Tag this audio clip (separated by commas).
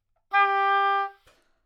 Wind instrument, Musical instrument, Music